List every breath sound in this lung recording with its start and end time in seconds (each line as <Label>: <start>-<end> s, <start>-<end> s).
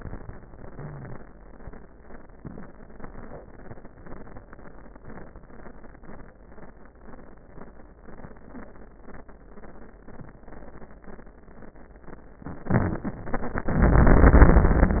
Inhalation: 12.71-13.06 s
Exhalation: 13.72-15.00 s
Wheeze: 0.69-1.16 s, 12.71-13.06 s